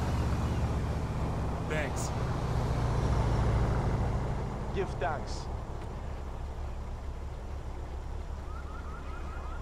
Traffic hums as it passes, a man speaks, a car alarm sounds in the distance